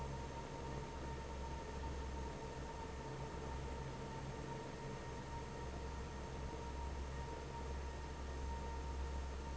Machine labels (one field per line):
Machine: fan